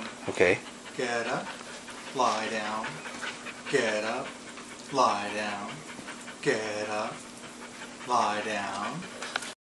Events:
0.0s-9.6s: mechanisms
0.0s-9.6s: pant (dog)
8.0s-9.0s: man speaking
9.3s-9.4s: tick

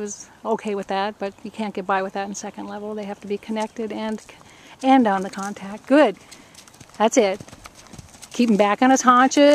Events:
0.0s-0.2s: woman speaking
0.0s-9.5s: background noise
0.4s-4.2s: woman speaking
0.4s-0.9s: clip-clop
2.9s-8.6s: clip-clop
4.4s-4.7s: breathing
4.8s-6.1s: woman speaking
7.0s-7.4s: woman speaking
8.3s-9.5s: woman speaking

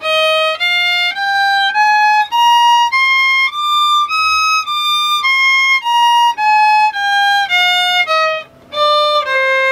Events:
0.0s-8.4s: music
0.0s-9.7s: mechanisms
8.7s-9.7s: music

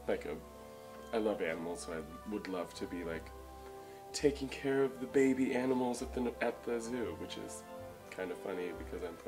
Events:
0.0s-0.4s: male speech
0.0s-9.2s: background noise
0.0s-9.2s: music
1.1s-3.3s: male speech
4.1s-7.7s: male speech
8.1s-9.2s: male speech

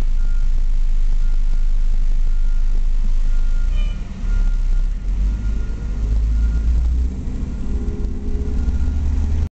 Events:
0.0s-9.4s: truck
0.2s-0.4s: reversing beeps
1.2s-1.7s: reversing beeps
2.2s-2.6s: reversing beeps
3.3s-3.7s: reversing beeps
3.7s-4.0s: vehicle horn
4.2s-4.8s: reversing beeps
5.0s-9.4s: revving
5.3s-6.0s: reversing beeps
6.3s-6.7s: reversing beeps
8.6s-9.1s: reversing beeps

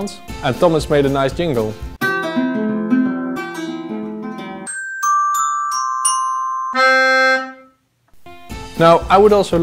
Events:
0.0s-9.6s: music
0.1s-1.9s: man speaking
8.2s-9.6s: man speaking

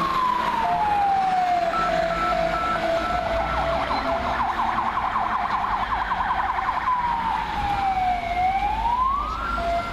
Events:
0.0s-9.9s: fire truck (siren)
0.0s-9.9s: roadway noise
0.6s-0.8s: reversing beeps
1.7s-1.9s: reversing beeps
2.1s-2.3s: reversing beeps
2.5s-2.8s: reversing beeps
2.9s-3.2s: reversing beeps
3.4s-3.6s: reversing beeps
3.9s-4.1s: tire squeal
5.7s-6.4s: tire squeal
9.2s-9.6s: speech

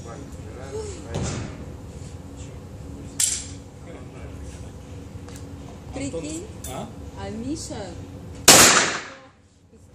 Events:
0.0s-0.2s: man speaking
0.0s-9.9s: conversation
0.0s-9.9s: mechanisms
0.4s-0.7s: man speaking
0.6s-1.0s: yawn
1.1s-1.3s: man speaking
1.1s-1.5s: thump
1.8s-2.1s: surface contact
2.3s-2.5s: surface contact
3.2s-3.5s: generic impact sounds
3.8s-4.8s: man speaking
4.4s-4.6s: surface contact
4.8s-4.9s: surface contact
5.3s-5.4s: generic impact sounds
5.5s-5.8s: surface contact
5.9s-6.4s: female speech
6.6s-6.7s: generic impact sounds
6.6s-6.9s: man speaking
7.1s-8.0s: female speech
8.5s-9.3s: gunfire
9.0s-9.2s: female speech
9.4s-9.6s: surface contact
9.7s-9.9s: female speech
9.7s-9.9s: surface contact

